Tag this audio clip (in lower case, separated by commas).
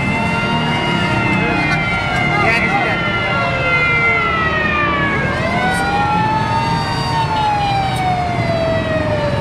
ambulance (siren), speech, vehicle